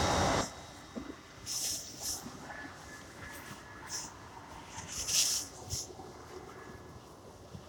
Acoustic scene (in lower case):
subway train